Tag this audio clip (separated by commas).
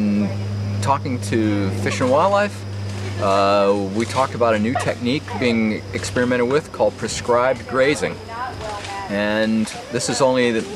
Speech